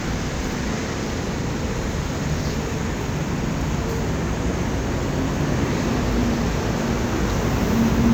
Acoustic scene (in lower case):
street